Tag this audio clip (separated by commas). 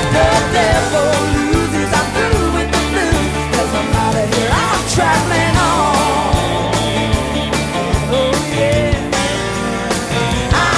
Music, Pop music, Singing, outside, urban or man-made